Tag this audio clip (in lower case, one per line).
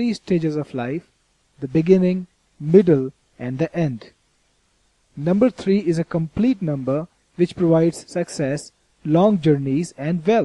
narration
speech